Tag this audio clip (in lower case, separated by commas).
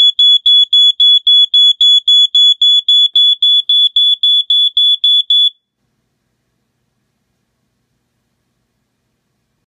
smoke detector